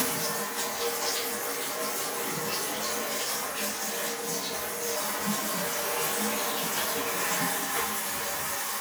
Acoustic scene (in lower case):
restroom